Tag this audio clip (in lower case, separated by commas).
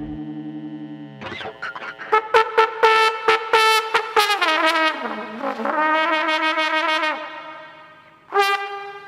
music, brass instrument, trombone